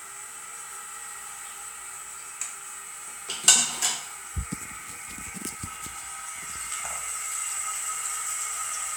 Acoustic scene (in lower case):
restroom